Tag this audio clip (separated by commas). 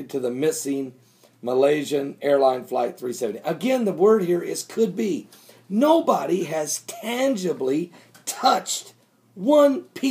Speech